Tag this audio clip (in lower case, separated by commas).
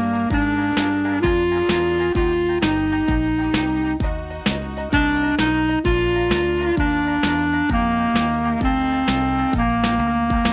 playing clarinet